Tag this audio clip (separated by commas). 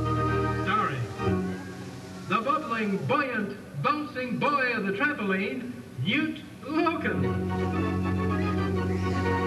Speech, Music